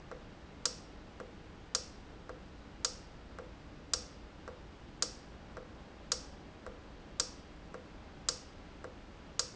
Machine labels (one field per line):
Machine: valve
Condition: normal